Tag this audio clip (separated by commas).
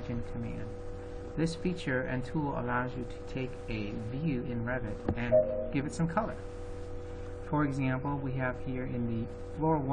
Speech